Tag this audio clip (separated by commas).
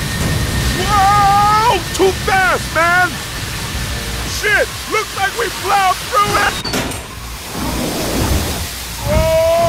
inside a large room or hall, Speech